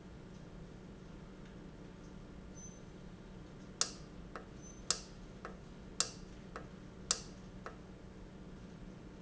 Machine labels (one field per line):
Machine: valve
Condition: normal